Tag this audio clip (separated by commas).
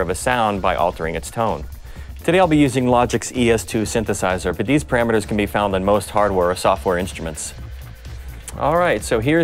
Music, Speech